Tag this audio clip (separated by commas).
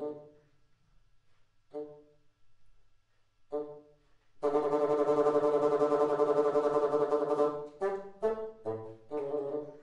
playing bassoon